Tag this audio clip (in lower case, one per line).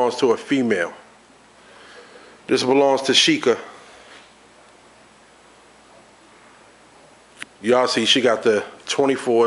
speech